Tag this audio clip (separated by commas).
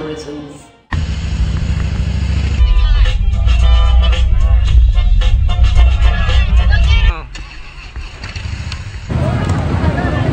Speech, Music, Car, Vehicle